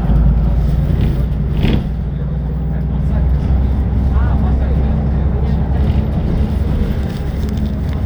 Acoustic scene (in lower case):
bus